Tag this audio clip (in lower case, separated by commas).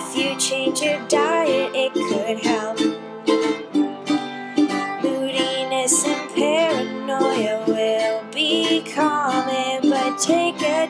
music, ukulele